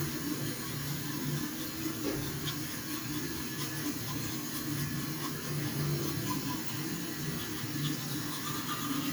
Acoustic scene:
restroom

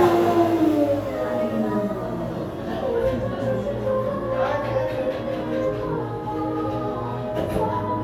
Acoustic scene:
cafe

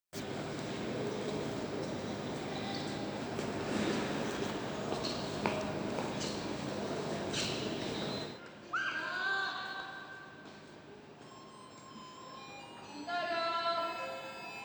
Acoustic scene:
subway station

